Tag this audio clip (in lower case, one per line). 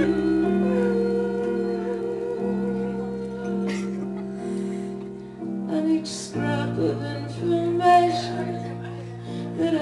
music
inside a large room or hall
singing
humming